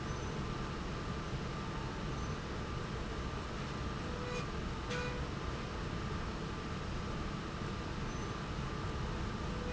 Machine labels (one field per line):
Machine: slide rail